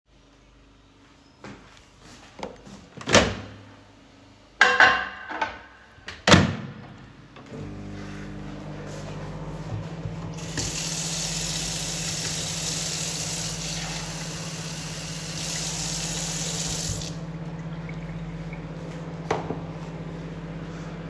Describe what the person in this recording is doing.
I put the dish in the microwave and turned it on, took a glass and turned on the tap and filled it with water